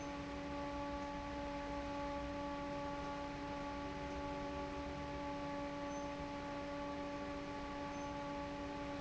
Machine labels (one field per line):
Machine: fan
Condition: normal